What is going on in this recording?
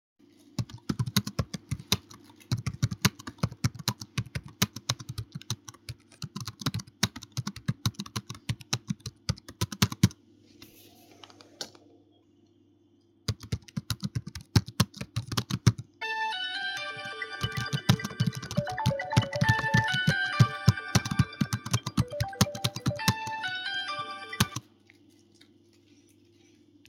I typed on the keyboard, flipped the light switch, continued typing, and then let my phone ring while I was still typing.